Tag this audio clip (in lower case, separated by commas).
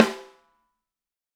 snare drum, musical instrument, music, percussion, drum